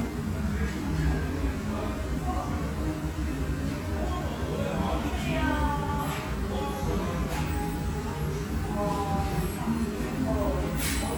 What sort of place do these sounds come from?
restaurant